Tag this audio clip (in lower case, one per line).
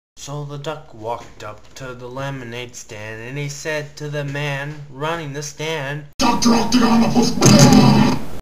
speech